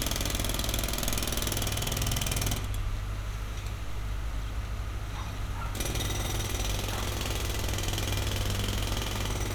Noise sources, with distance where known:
jackhammer

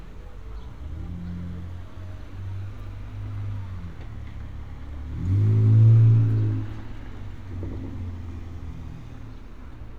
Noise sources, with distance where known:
medium-sounding engine, near

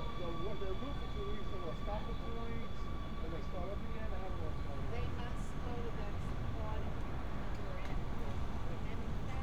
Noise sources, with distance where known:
medium-sounding engine
person or small group talking, far

